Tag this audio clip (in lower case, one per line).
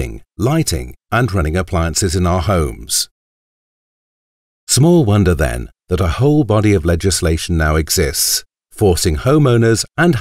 speech